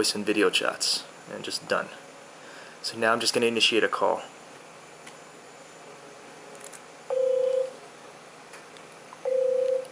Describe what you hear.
A man speaks, a phone rings